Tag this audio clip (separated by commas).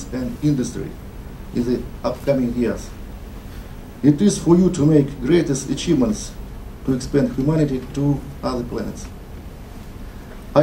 man speaking, Speech, Narration